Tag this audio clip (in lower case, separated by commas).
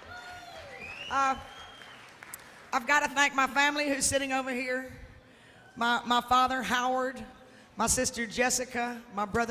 speech